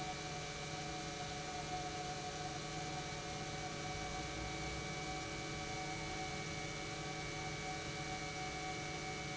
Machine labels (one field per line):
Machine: pump